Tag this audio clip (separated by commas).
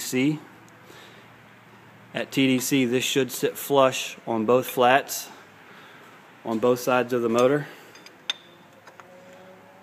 Speech